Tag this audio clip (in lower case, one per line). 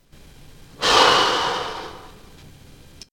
respiratory sounds
human voice
sigh
breathing